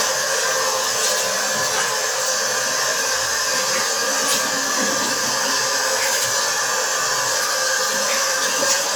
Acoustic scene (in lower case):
restroom